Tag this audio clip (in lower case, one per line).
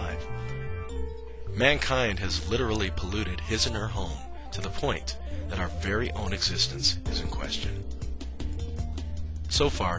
music
speech